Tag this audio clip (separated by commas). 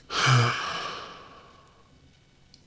Sigh, Human voice, Respiratory sounds, Breathing